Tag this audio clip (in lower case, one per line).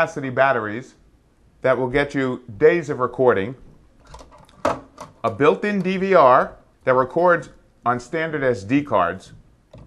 speech